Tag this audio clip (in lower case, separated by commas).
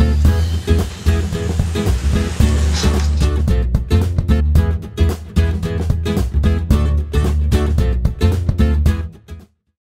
music, vehicle